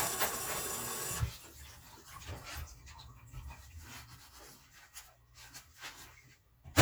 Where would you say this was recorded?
in a kitchen